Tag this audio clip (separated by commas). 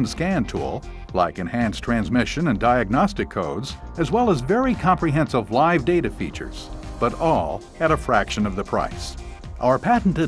Speech, Music